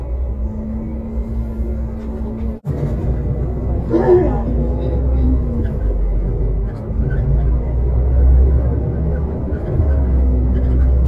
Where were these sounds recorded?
on a bus